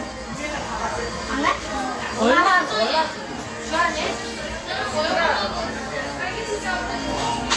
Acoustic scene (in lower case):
cafe